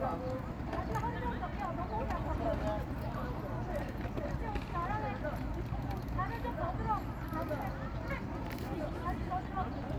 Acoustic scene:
park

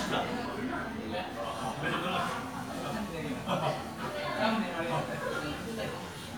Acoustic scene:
crowded indoor space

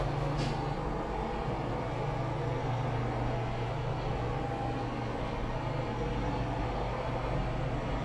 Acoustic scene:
elevator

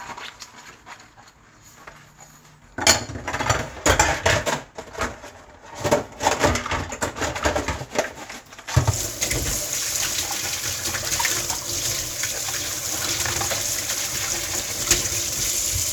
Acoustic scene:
kitchen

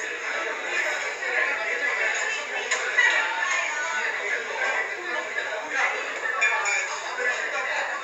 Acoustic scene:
crowded indoor space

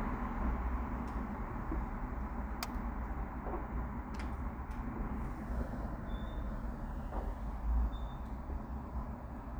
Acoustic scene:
residential area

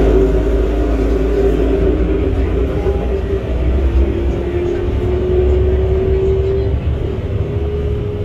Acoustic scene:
bus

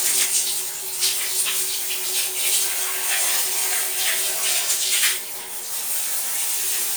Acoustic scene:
restroom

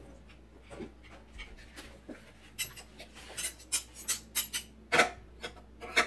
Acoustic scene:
kitchen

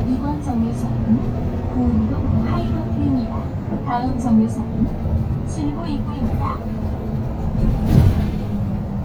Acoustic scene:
bus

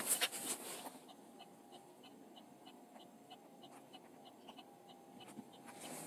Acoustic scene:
car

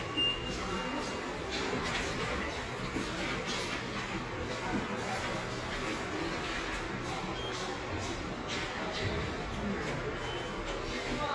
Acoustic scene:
subway station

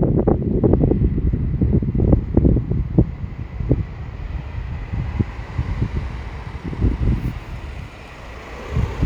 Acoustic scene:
residential area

